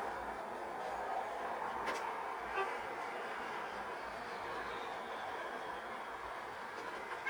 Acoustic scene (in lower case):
street